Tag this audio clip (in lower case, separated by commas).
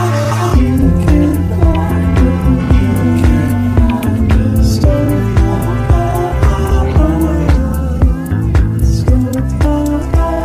blues